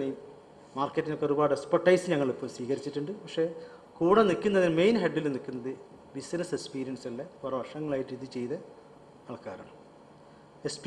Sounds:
speech
narration
man speaking

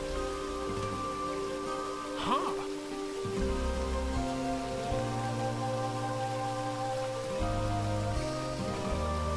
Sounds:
music

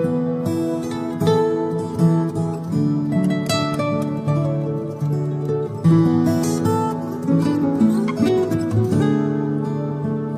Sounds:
music

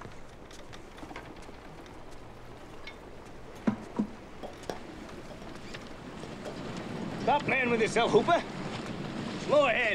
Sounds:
wind

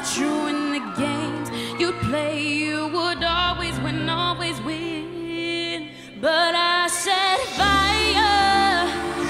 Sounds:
music

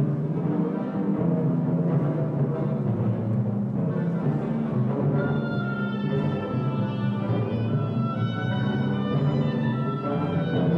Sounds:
timpani
classical music
music
orchestra
jazz

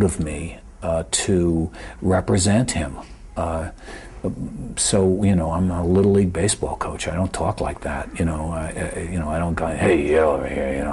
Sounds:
speech

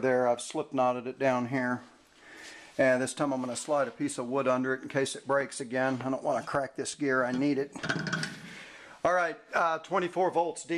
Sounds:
speech

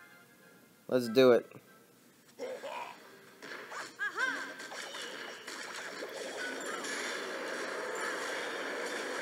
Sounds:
speech
music

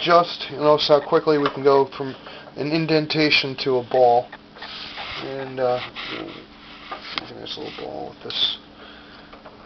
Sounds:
speech

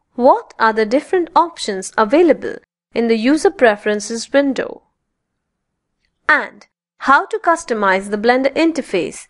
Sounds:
speech

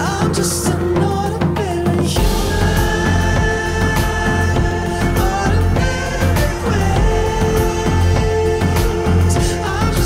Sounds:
rhythm and blues
music

